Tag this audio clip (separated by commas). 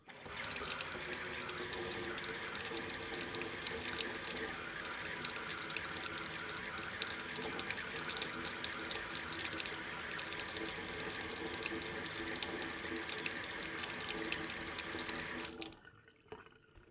home sounds, Sink (filling or washing), faucet